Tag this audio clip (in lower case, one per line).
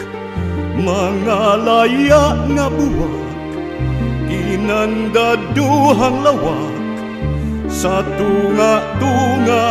music